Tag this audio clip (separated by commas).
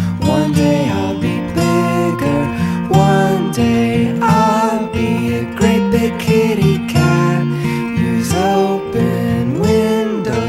Music